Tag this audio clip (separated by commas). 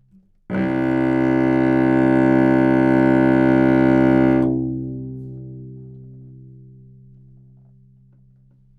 Music, Musical instrument, Bowed string instrument